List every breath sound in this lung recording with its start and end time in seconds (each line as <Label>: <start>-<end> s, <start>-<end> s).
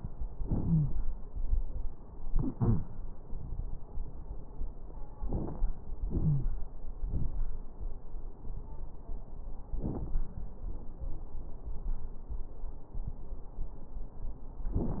Wheeze: 0.64-0.91 s, 2.51-2.80 s, 6.18-6.55 s